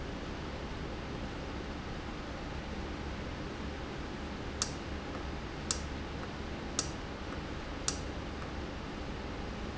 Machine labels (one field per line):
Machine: valve